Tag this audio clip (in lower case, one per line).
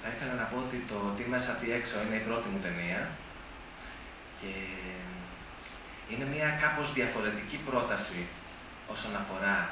speech